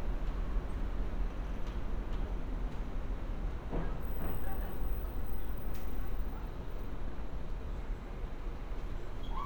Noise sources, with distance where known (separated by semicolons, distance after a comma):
person or small group talking